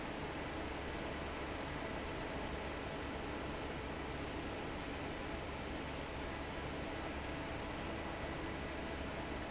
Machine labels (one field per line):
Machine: fan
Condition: normal